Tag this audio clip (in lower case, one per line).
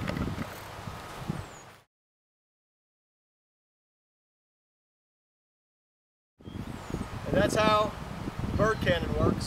speech